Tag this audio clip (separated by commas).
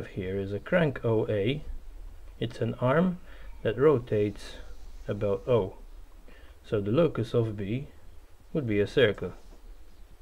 Speech